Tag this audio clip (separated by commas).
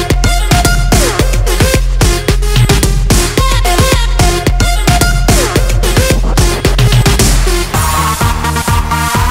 Music, Disco